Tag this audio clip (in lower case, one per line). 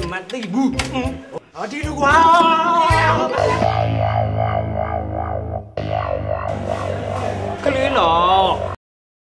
speech
inside a large room or hall
music